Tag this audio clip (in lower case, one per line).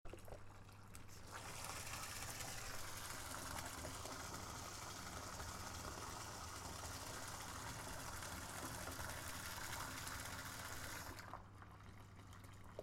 domestic sounds
faucet
bathtub (filling or washing)